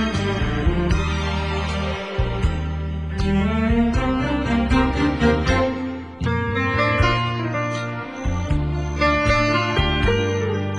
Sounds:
music

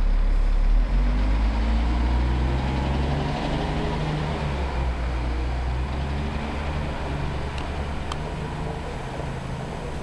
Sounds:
rustling leaves

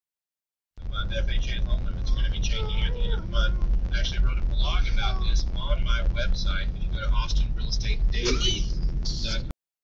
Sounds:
speech, vehicle

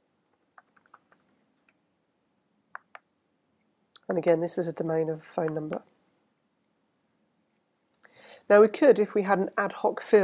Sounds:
typing

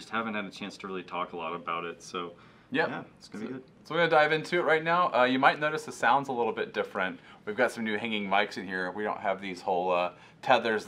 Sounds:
speech

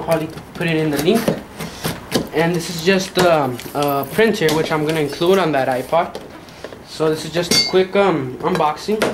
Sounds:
speech

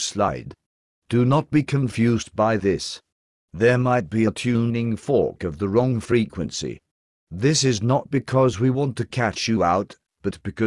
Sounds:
speech

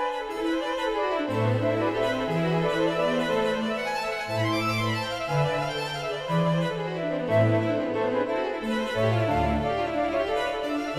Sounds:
silence

